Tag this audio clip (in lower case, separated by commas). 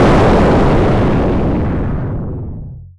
explosion